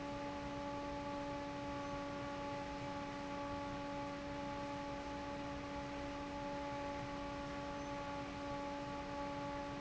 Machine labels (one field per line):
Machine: fan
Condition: normal